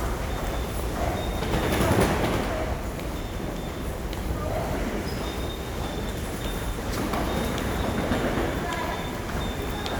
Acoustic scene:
subway station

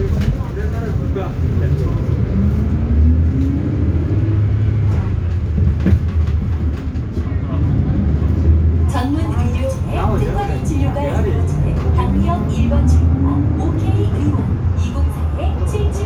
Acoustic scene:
bus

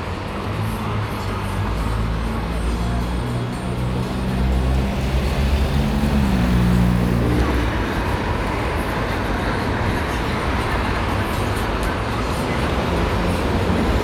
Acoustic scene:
street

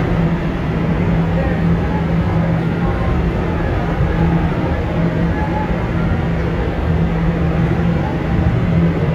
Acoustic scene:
subway train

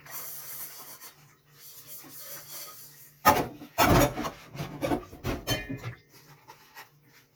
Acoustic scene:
kitchen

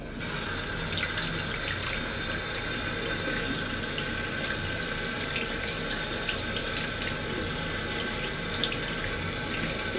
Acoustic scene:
restroom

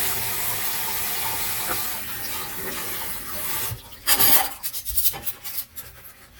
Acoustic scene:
kitchen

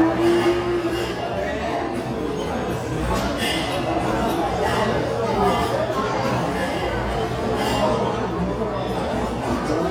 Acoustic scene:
restaurant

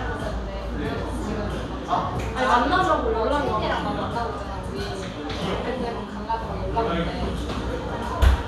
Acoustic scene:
cafe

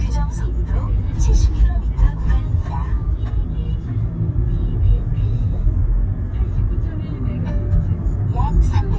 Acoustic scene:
car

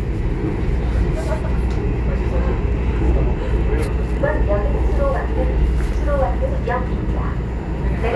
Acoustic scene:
subway train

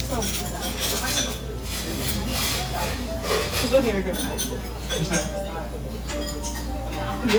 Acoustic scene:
restaurant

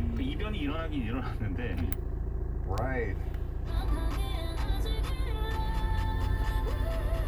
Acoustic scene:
car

